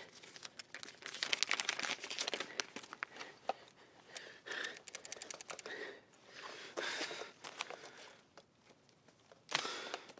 Paper is crumpling and a person sighs